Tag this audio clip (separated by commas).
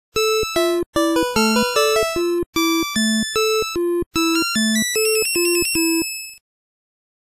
Video game music, Music